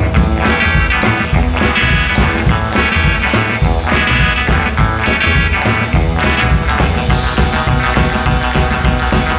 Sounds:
Music

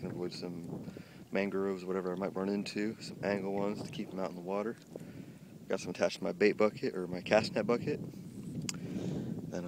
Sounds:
Speech, Water vehicle, Rowboat

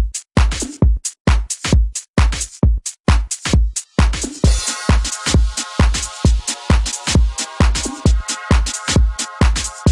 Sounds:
House music

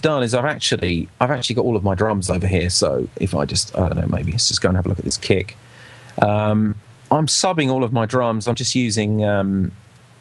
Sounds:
Speech

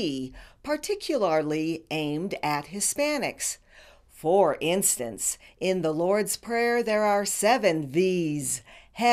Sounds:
Female speech, Speech

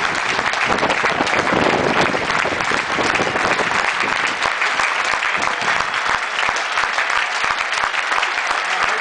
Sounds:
Speech

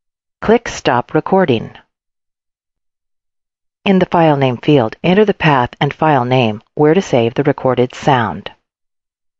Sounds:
Speech

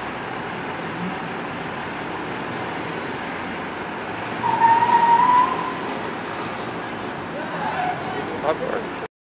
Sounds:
Speech, Vehicle

